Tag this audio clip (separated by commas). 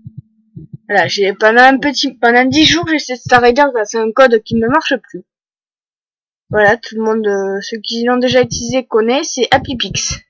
Speech